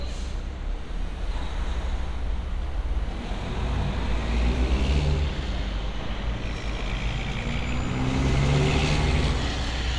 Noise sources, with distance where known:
engine of unclear size, near

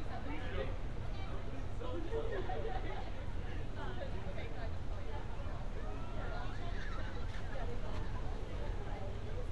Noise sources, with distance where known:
person or small group talking, near

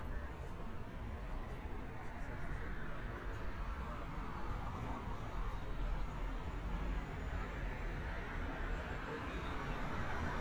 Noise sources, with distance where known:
engine of unclear size; person or small group talking, far

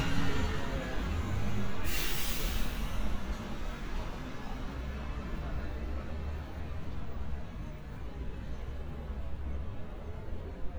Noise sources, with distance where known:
engine of unclear size, near

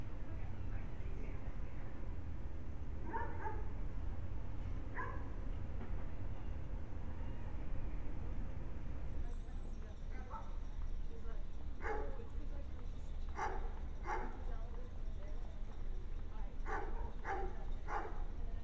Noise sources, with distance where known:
person or small group talking; dog barking or whining

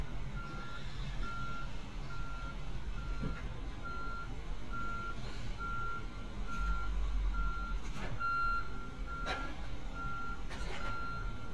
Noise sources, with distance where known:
reverse beeper, near

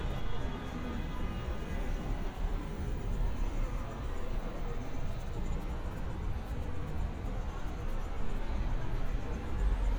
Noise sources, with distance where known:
car horn

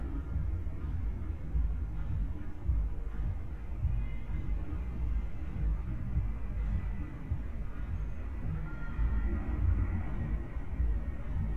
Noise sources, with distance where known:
music from an unclear source

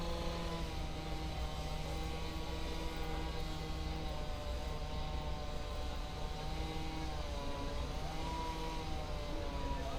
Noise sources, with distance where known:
unidentified powered saw, far

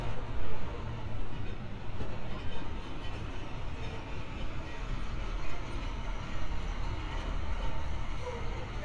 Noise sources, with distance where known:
large-sounding engine; person or small group shouting

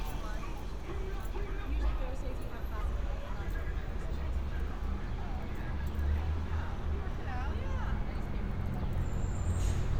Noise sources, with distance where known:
music from an unclear source; person or small group talking, near

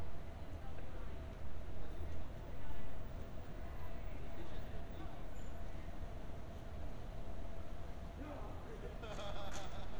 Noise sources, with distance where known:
person or small group talking, far

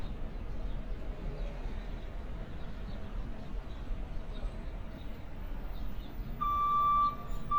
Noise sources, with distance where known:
reverse beeper, near

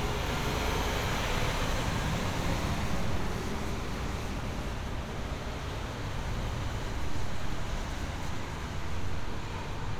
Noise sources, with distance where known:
large-sounding engine, near

